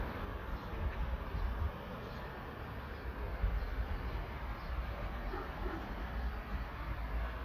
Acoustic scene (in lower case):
park